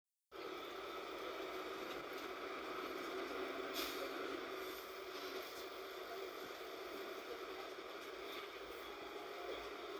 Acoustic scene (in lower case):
bus